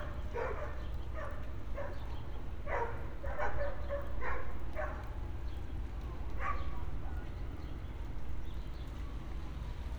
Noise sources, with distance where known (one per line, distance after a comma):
dog barking or whining, far